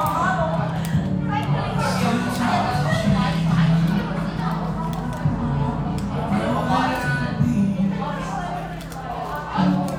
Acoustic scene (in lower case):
cafe